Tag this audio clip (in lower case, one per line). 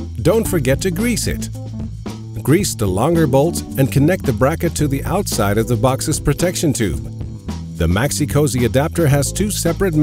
music
speech